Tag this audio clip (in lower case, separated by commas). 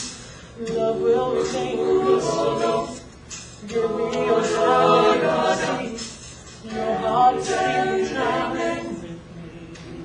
a capella, choir, singing